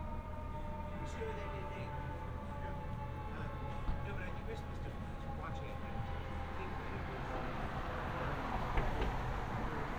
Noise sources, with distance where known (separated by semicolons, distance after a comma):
person or small group talking, near